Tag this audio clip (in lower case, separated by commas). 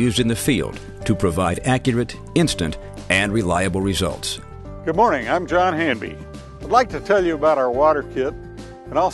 music, speech